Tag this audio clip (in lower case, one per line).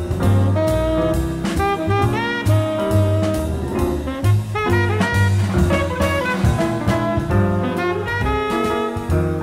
music
saxophone